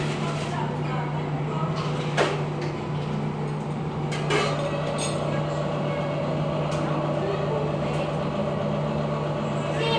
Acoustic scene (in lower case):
cafe